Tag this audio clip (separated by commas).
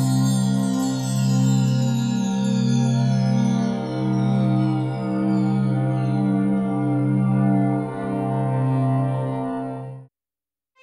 Music